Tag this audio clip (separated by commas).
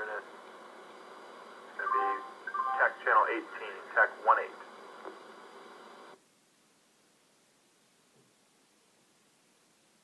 Radio, Speech